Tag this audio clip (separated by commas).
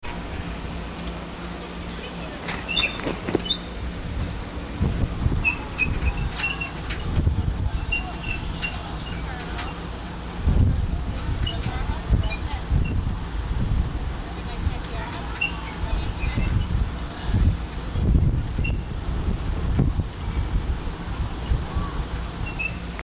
Vehicle, Water vehicle